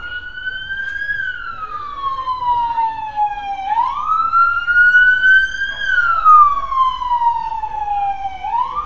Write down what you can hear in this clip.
siren